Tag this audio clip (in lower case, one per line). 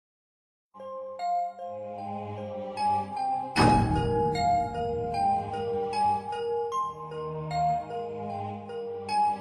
music